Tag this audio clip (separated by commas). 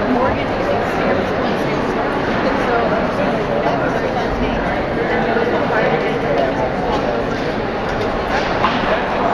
Speech, inside a public space